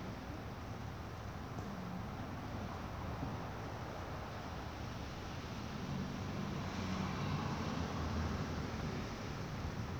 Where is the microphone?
in a residential area